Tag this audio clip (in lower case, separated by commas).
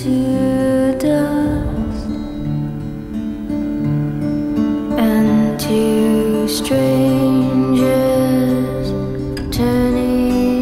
music